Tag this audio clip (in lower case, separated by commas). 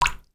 drip, liquid